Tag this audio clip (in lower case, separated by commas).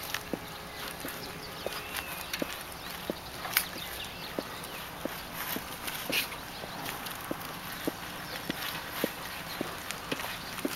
bicycle